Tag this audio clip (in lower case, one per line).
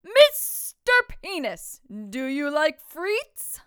yell
shout
woman speaking
human voice
speech